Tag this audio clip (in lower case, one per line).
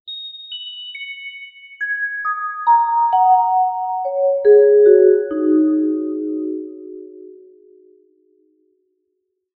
musical instrument
music
mallet percussion
percussion